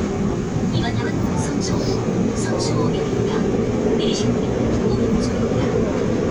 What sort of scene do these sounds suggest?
subway train